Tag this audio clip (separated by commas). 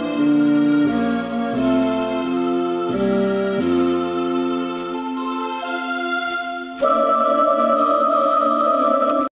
Harpsichord, Music